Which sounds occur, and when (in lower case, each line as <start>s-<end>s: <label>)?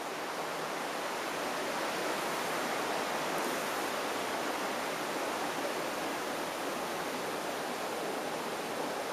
0.0s-9.1s: stream
0.0s-9.1s: wind